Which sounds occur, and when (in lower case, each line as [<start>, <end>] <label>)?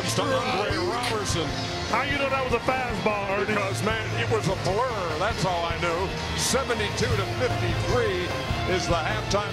[0.00, 1.61] male speech
[0.00, 9.52] music
[1.83, 6.13] male speech
[6.34, 8.38] male speech
[8.56, 9.52] male speech